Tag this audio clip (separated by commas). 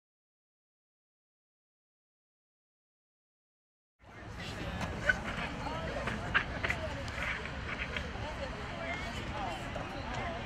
Speech